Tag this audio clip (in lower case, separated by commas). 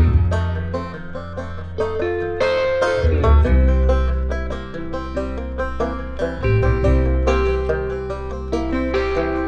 guitar, musical instrument, music, plucked string instrument